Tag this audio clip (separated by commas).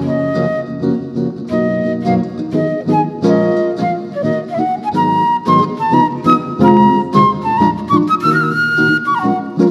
woodwind instrument, playing flute, Flute